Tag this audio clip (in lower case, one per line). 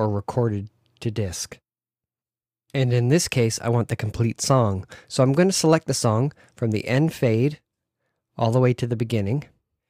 speech